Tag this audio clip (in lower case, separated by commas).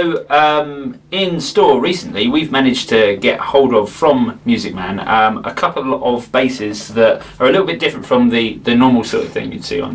speech